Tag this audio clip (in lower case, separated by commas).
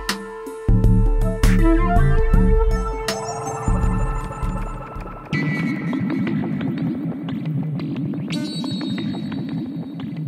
synthesizer, electronic music, music